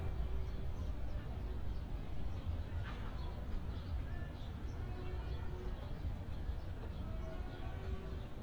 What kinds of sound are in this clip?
music from an unclear source